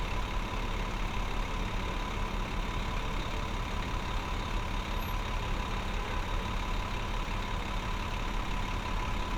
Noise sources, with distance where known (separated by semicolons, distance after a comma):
large-sounding engine, near